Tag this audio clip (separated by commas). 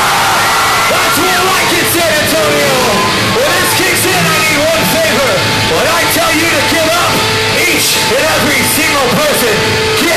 Music, Speech